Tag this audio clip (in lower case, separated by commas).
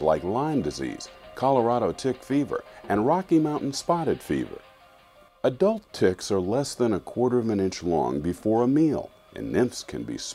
speech, music